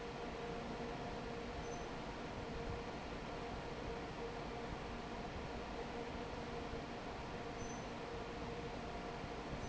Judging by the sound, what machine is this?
fan